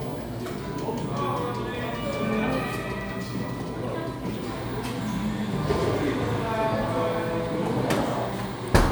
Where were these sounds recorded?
in a cafe